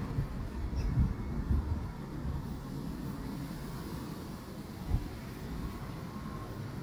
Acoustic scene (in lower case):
residential area